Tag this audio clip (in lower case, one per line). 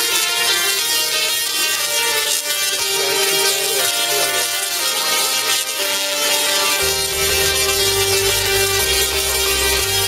music
electronica
speech